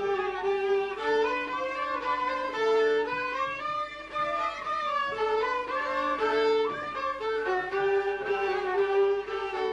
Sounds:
Bowed string instrument, Music, Speech

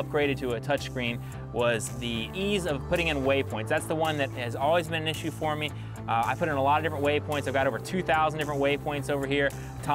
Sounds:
Music, Speech

